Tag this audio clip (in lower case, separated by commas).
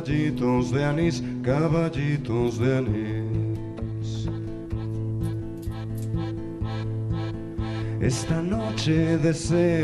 music